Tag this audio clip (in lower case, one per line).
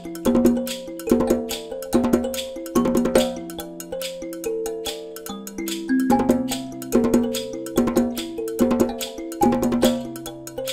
music